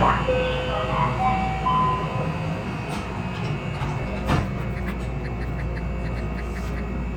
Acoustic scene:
subway train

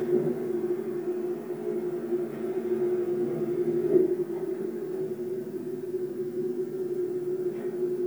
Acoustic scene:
subway train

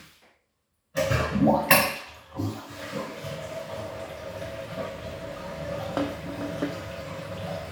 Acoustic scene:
restroom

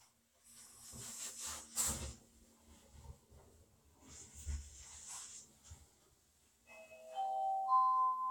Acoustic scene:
elevator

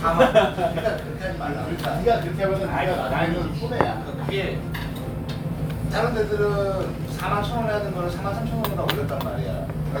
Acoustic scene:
restaurant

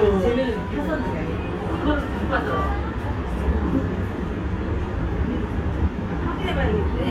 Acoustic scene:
restaurant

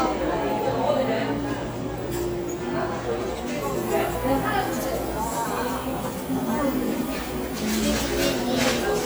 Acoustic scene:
cafe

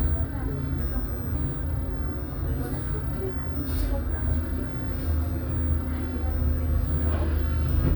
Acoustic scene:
bus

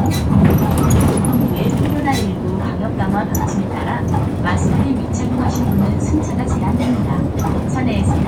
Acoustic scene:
bus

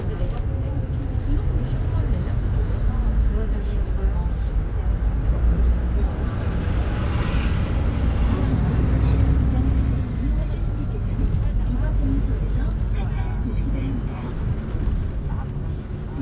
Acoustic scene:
bus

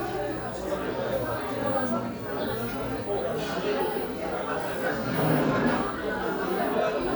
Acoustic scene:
crowded indoor space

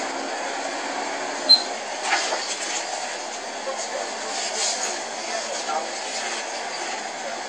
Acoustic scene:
bus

